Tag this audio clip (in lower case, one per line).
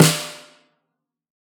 percussion
music
drum
snare drum
musical instrument